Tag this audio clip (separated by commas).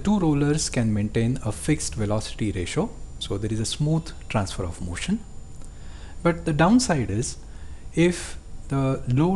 Speech